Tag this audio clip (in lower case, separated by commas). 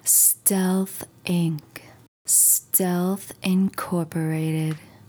human voice, woman speaking, speech